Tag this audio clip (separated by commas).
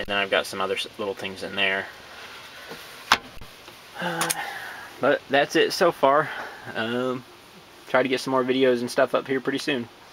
Speech